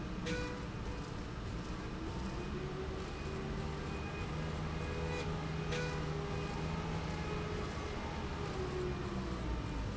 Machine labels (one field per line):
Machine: slide rail